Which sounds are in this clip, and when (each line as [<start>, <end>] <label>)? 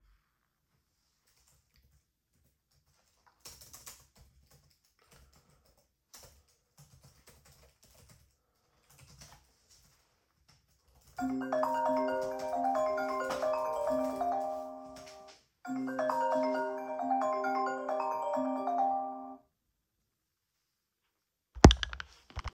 [1.10, 15.31] keyboard typing
[11.08, 19.50] phone ringing